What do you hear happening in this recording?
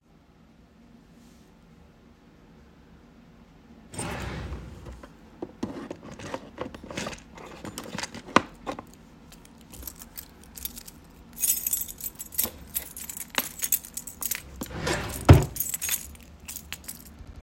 I opened a wardrobe drawer and searched inside it. While doing that, I found a keychain that i took. Then I closed the drawer again.